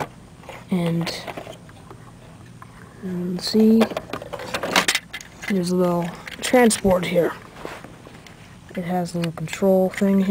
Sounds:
speech, inside a small room

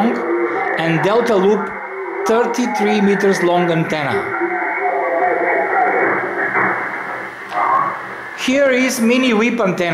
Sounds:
speech

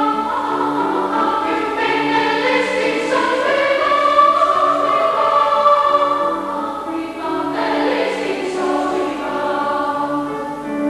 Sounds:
music, tender music

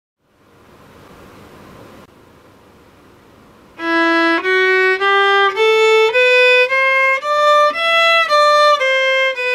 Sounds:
musical instrument, violin, music

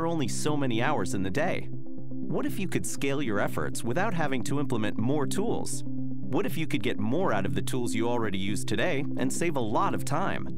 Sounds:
music, speech

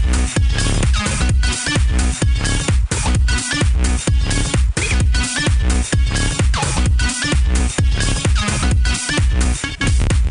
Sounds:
electronic dance music, music

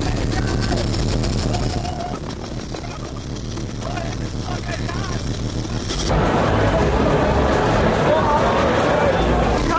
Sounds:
music, speech

